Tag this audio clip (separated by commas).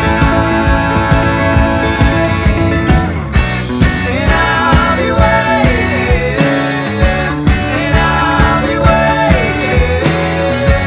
Music